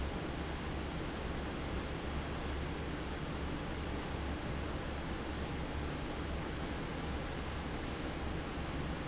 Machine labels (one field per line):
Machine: fan